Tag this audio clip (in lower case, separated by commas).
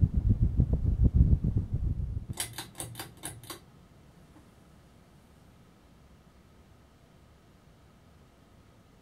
silence, inside a small room